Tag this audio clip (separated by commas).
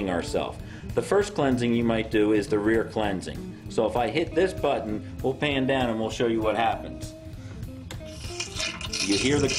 Music, Speech